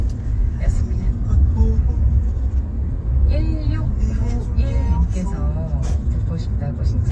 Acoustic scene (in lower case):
car